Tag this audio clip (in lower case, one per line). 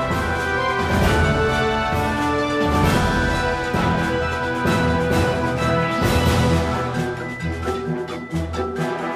music